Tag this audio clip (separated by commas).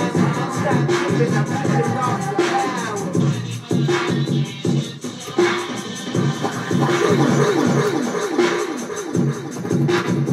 Music, Electronic music, Scratching (performance technique)